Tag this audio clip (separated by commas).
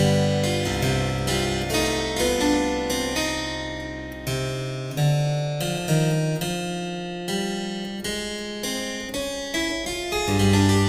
Harpsichord, Music